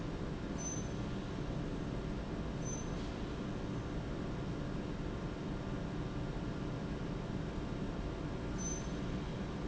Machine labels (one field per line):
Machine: pump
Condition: normal